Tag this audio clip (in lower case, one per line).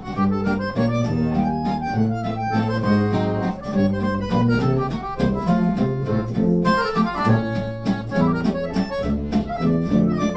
music